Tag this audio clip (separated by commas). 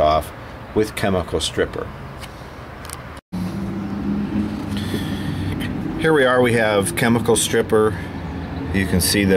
Speech